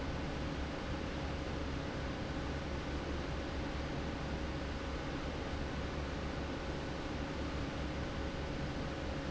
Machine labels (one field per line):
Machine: fan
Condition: normal